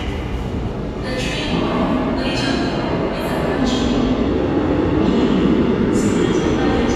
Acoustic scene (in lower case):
subway station